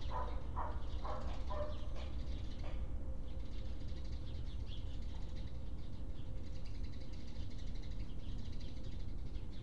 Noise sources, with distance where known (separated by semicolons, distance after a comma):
dog barking or whining